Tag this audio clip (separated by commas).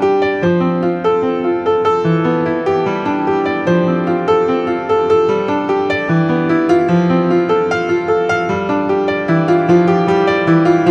Music